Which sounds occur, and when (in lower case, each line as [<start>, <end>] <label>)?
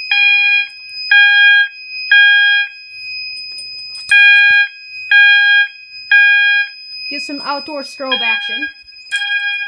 [0.00, 9.65] fire alarm
[0.00, 9.65] mechanisms
[0.59, 0.95] generic impact sounds
[3.30, 3.61] generic impact sounds
[3.87, 4.10] generic impact sounds
[4.44, 4.57] generic impact sounds
[6.47, 6.56] generic impact sounds
[7.05, 8.66] female speech
[7.77, 7.92] generic impact sounds
[9.05, 9.19] generic impact sounds